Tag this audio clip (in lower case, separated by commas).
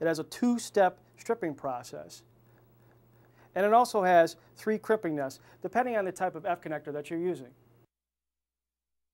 speech